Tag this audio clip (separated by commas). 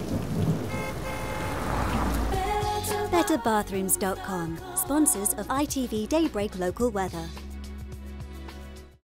Rain on surface, Music, Speech